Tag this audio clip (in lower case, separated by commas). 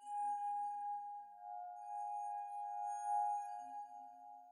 glass